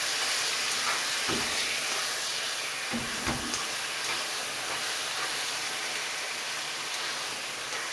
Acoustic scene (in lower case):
kitchen